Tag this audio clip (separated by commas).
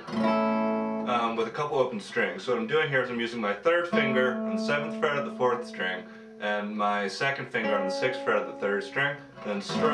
Plucked string instrument, Speech, Guitar, Music, Musical instrument, Acoustic guitar